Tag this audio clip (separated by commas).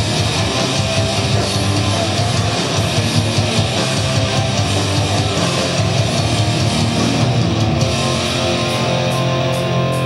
Music